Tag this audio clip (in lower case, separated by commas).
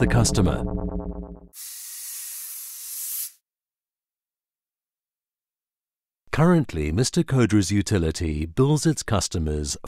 speech, music